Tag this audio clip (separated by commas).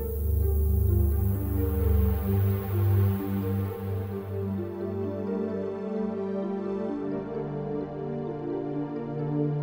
Tender music, Music